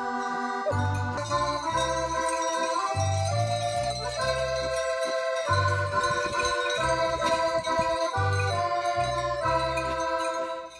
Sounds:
music

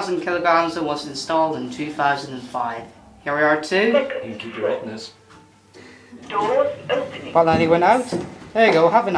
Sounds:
speech

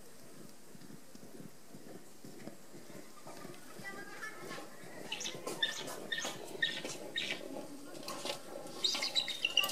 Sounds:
speech

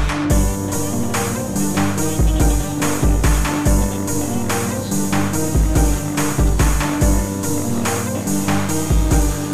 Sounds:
music

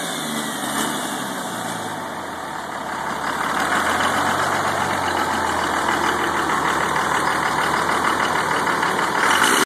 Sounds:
vehicle

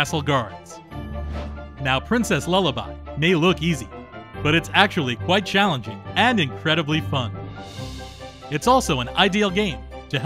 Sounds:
speech
music

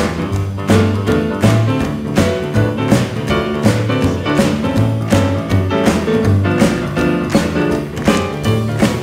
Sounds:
music

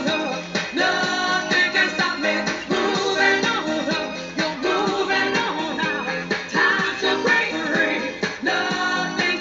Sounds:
singing
music
outside, urban or man-made

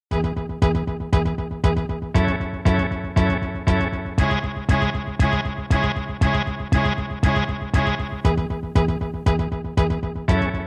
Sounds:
synthesizer

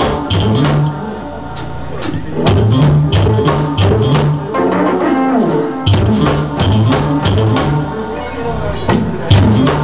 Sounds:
musical instrument
music
strum

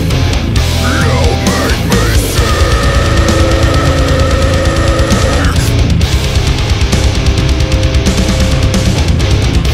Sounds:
music
background music

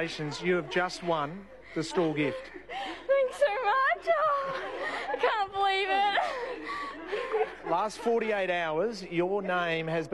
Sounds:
speech

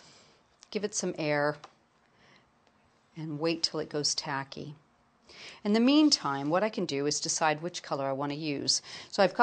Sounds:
inside a small room
speech

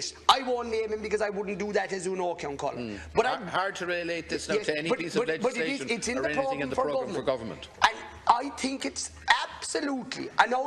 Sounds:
speech

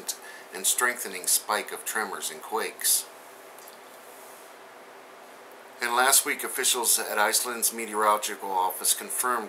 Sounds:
speech

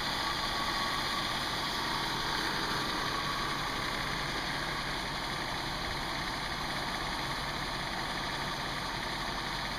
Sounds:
vehicle
heavy engine (low frequency)
idling
engine

